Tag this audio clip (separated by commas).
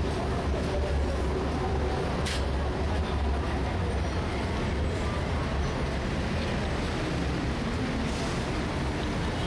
Traffic noise, Vehicle